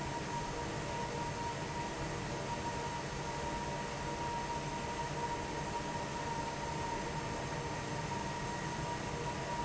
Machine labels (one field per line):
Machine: fan